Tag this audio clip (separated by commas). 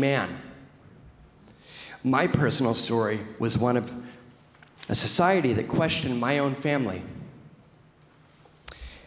monologue, Male speech, Speech